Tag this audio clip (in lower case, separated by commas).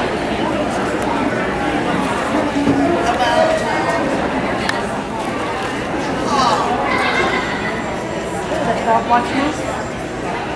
inside a public space, speech